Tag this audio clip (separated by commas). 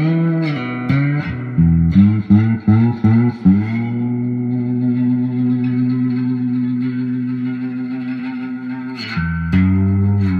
slide guitar